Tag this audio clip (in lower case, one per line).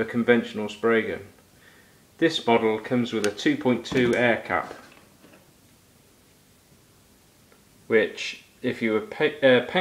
speech